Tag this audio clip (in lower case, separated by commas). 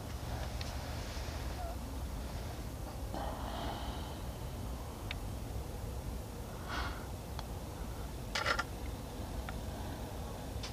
inside a large room or hall